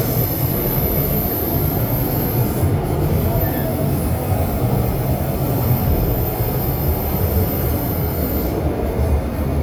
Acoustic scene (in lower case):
subway train